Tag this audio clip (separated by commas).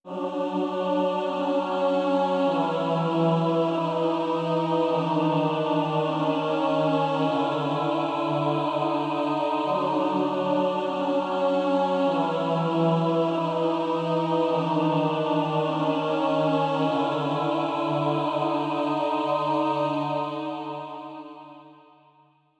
Music, Musical instrument, Human voice, Singing